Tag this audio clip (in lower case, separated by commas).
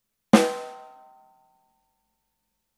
music, musical instrument, percussion, snare drum, drum